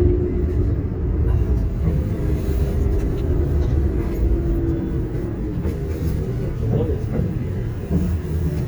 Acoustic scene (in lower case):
bus